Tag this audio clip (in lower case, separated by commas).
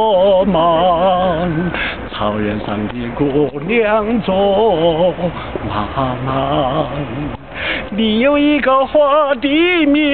male singing